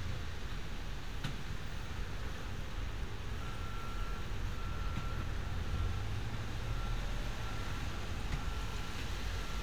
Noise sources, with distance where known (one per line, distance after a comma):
engine of unclear size, near
reverse beeper, far